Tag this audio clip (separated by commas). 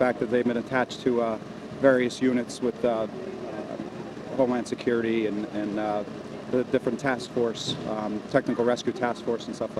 Speech